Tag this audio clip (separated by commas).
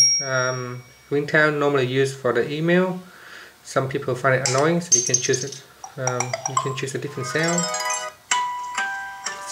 inside a small room, Speech, Ringtone